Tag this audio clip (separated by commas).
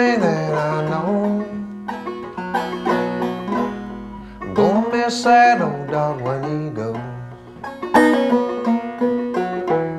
Music